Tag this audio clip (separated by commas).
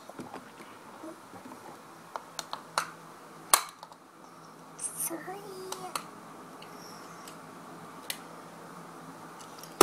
kid speaking, Speech